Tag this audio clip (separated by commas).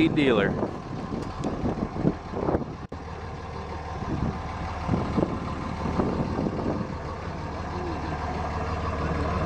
Vehicle, Speech